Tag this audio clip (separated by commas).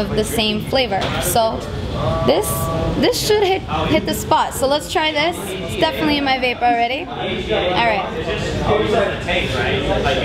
Speech